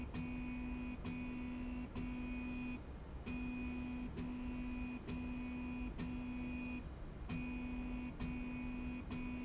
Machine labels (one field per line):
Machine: slide rail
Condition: normal